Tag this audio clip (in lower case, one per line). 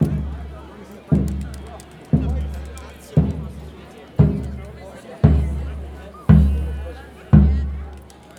crowd
human group actions